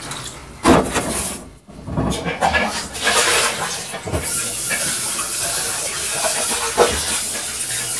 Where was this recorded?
in a kitchen